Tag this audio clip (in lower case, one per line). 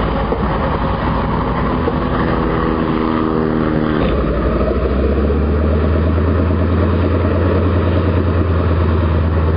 vehicle
propeller